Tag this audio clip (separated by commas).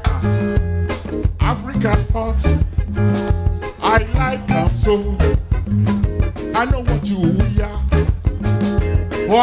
Music, Afrobeat, Music of Africa